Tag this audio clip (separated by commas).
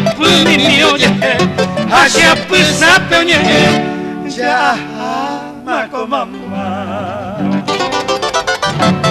Musical instrument, Music, Harp, Plucked string instrument